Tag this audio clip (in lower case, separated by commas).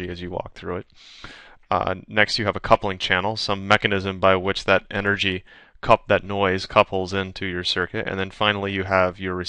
speech